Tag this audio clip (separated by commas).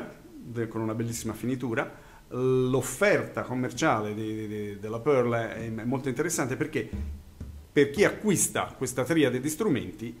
Music, Speech